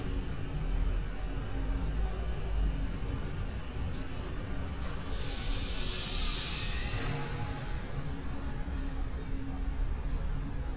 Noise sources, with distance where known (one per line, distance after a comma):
engine of unclear size, near